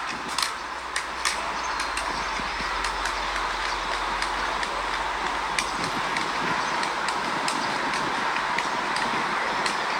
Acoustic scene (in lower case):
park